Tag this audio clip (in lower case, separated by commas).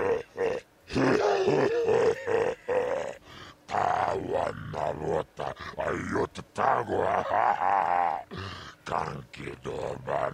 inside a small room, speech